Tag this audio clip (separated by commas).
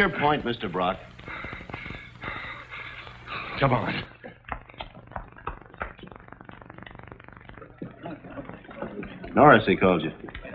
inside a small room, Speech